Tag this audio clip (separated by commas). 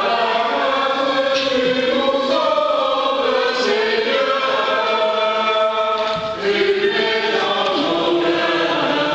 Mantra